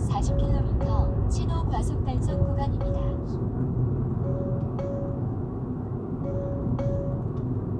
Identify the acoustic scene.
car